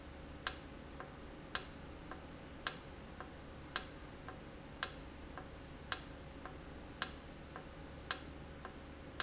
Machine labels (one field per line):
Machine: valve